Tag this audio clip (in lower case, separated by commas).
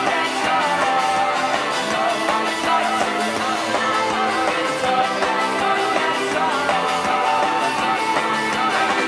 music